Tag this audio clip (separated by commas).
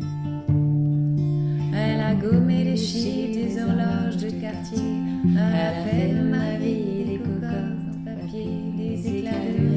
Strum, Music, Plucked string instrument, Musical instrument, Guitar